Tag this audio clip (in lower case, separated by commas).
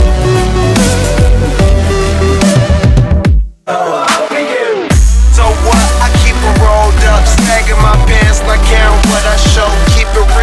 music, dubstep, electronic music